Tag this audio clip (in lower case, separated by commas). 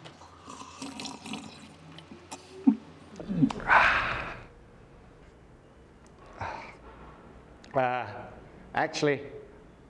speech, inside a small room